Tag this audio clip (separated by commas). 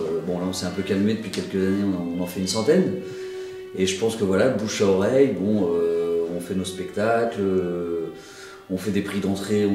Music, Speech